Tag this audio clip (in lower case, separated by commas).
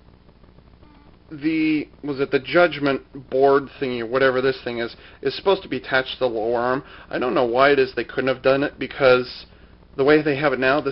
speech